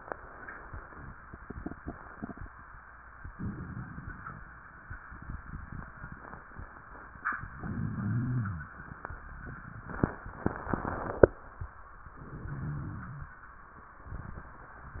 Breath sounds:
Inhalation: 3.31-4.40 s, 7.53-8.61 s, 12.11-13.33 s
Rhonchi: 7.53-8.61 s, 12.11-13.33 s

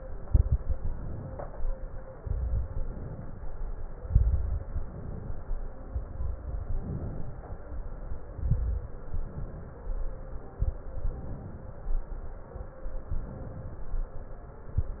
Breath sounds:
Inhalation: 0.78-1.48 s, 2.72-3.42 s, 4.62-5.39 s, 6.63-7.45 s, 8.99-9.80 s, 11.06-11.87 s, 13.13-13.91 s
Exhalation: 0.26-0.70 s, 2.18-2.64 s, 4.03-4.62 s, 6.02-6.57 s, 8.30-8.89 s, 10.58-11.02 s
Crackles: 0.26-0.70 s, 2.18-2.64 s, 4.03-4.62 s, 6.02-6.57 s, 8.30-8.89 s, 10.58-11.02 s

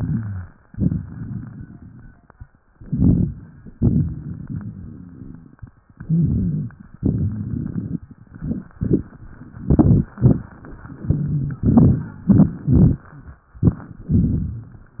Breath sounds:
Inhalation: 1.16-1.96 s, 5.75-6.55 s, 8.82-9.53 s, 11.88-12.58 s
Exhalation: 2.13-2.92 s, 6.83-7.91 s, 9.87-10.95 s, 12.88-13.93 s
Wheeze: 1.22-1.84 s, 5.75-6.55 s, 8.82-9.53 s
Rhonchi: 9.87-10.95 s, 11.88-12.58 s

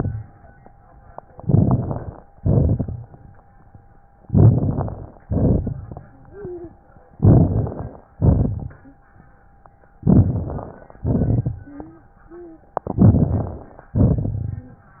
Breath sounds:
Inhalation: 1.41-2.26 s, 4.29-5.14 s, 7.17-8.05 s, 10.04-10.95 s, 12.92-13.83 s
Exhalation: 2.37-3.15 s, 5.24-6.11 s, 8.16-8.88 s, 11.06-11.73 s, 13.93-14.76 s
Wheeze: 6.09-6.79 s, 11.57-12.12 s, 12.28-12.70 s
Crackles: 1.41-2.26 s, 2.37-3.15 s, 4.29-5.14 s, 5.24-6.11 s, 7.17-8.05 s, 8.16-8.88 s, 10.04-10.95 s, 11.06-11.73 s, 12.92-13.83 s, 13.93-14.76 s

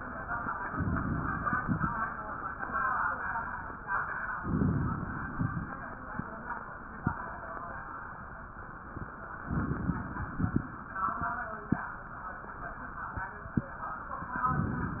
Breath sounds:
Inhalation: 0.72-1.90 s, 4.36-5.54 s, 9.47-10.65 s
Crackles: 0.72-1.90 s, 4.36-5.54 s, 9.47-10.65 s

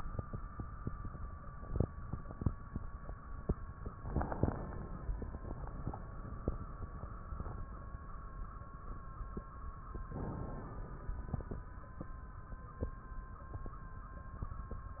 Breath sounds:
Inhalation: 3.90-5.33 s, 10.07-11.50 s
Crackles: 3.90-5.33 s

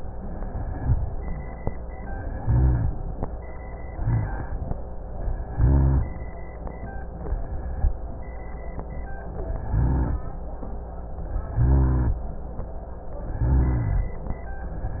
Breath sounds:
Inhalation: 0.51-1.29 s, 2.31-2.96 s, 3.95-4.59 s, 5.50-6.15 s, 9.64-10.29 s, 11.57-12.22 s, 13.36-14.12 s
Rhonchi: 0.51-1.29 s, 2.31-2.96 s, 3.95-4.59 s, 5.50-6.15 s, 9.64-10.29 s, 11.57-12.22 s, 13.36-14.12 s

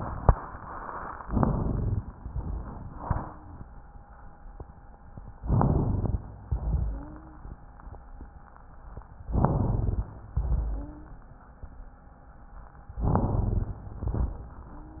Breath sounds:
Inhalation: 1.23-2.20 s, 5.46-6.28 s, 9.30-10.11 s, 13.02-13.83 s
Exhalation: 2.24-3.32 s, 6.47-7.40 s, 10.34-11.16 s, 13.85-14.67 s
Wheeze: 6.87-7.40 s, 10.70-11.16 s
Rhonchi: 1.25-2.07 s, 5.46-6.28 s, 9.30-10.11 s, 13.02-13.83 s
Crackles: 13.85-14.67 s

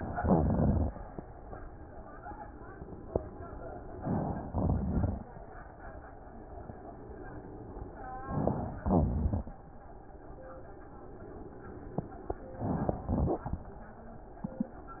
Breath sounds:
Inhalation: 3.93-4.47 s, 8.21-8.79 s, 12.51-13.04 s
Exhalation: 0.00-0.88 s, 4.49-5.48 s, 8.81-9.65 s, 13.02-14.05 s
Wheeze: 0.00-0.88 s, 8.81-9.65 s
Crackles: 4.48-5.50 s, 13.02-14.05 s

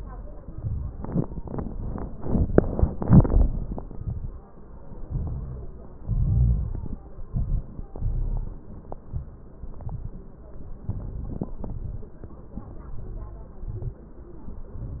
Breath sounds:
Inhalation: 0.38-1.02 s, 5.03-5.68 s, 7.30-7.90 s, 9.01-9.48 s, 10.87-11.55 s, 12.86-13.62 s, 14.38-15.00 s
Exhalation: 3.76-4.41 s, 6.02-6.97 s, 7.96-8.57 s, 9.60-10.28 s, 11.59-12.18 s, 13.64-14.12 s
Crackles: 0.38-1.02 s, 3.76-4.41 s, 5.03-5.68 s, 6.02-6.97 s, 7.30-7.90 s, 7.96-8.57 s, 9.01-9.48 s, 9.60-10.28 s, 10.87-11.55 s, 11.59-12.18 s, 12.86-13.62 s, 13.64-14.12 s, 14.38-15.00 s

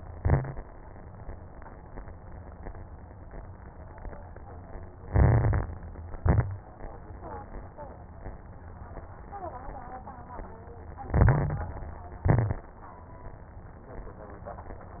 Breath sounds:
Inhalation: 5.04-5.98 s, 11.10-11.91 s
Exhalation: 0.00-0.53 s, 6.14-6.67 s, 12.26-12.79 s
Crackles: 0.00-0.53 s, 5.04-5.98 s, 6.14-6.67 s, 11.10-11.91 s, 12.26-12.79 s

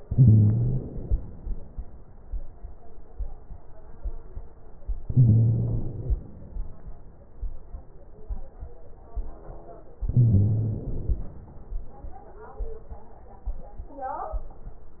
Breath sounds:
Inhalation: 0.00-1.18 s, 5.05-6.34 s, 10.05-11.34 s
Crackles: 0.00-1.18 s, 5.05-6.34 s, 10.05-11.34 s

